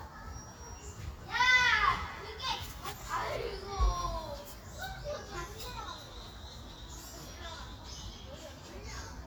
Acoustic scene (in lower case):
park